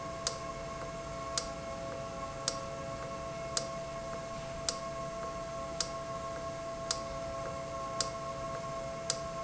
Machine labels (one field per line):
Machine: valve